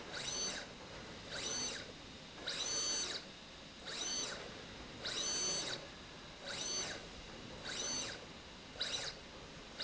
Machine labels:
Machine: slide rail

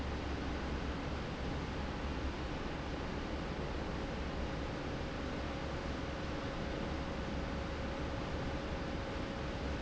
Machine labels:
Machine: fan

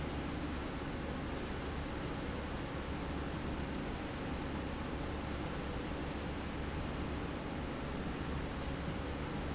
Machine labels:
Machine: slide rail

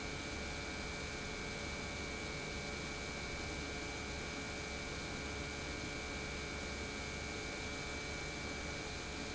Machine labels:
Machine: pump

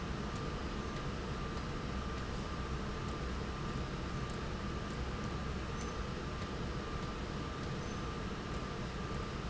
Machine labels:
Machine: slide rail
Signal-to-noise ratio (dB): -6 dB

